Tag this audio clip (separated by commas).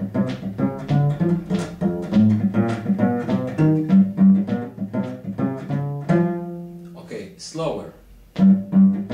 Music, Bowed string instrument, Musical instrument, Cello, Speech